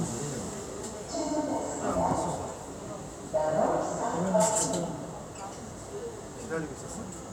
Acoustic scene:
subway train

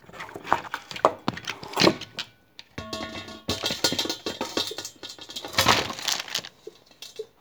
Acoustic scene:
kitchen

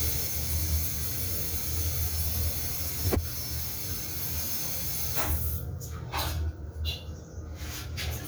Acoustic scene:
restroom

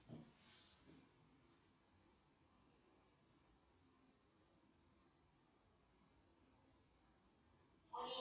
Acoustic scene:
elevator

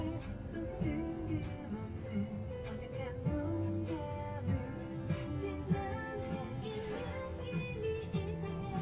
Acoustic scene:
car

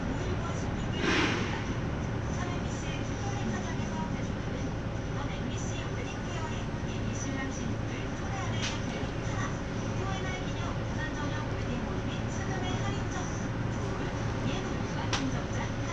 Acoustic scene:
bus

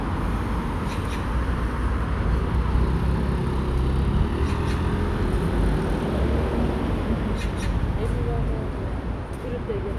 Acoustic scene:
street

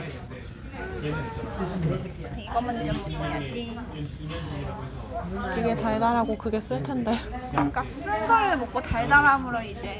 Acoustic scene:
crowded indoor space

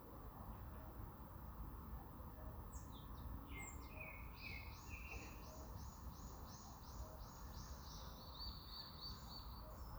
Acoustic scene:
park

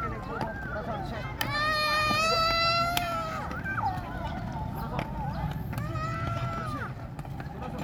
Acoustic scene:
park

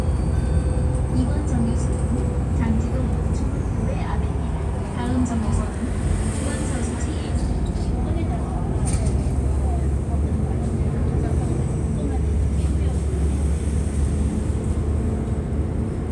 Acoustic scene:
bus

